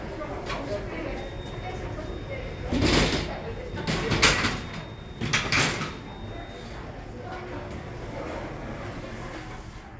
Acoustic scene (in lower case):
elevator